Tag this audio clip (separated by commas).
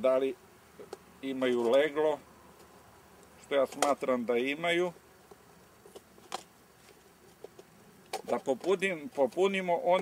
Speech